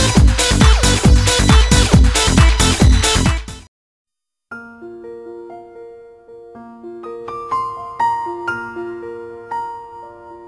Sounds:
music

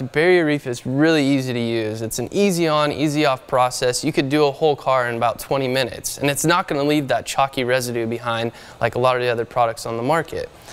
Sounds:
speech

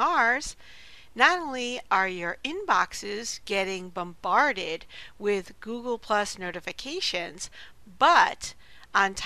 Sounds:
speech

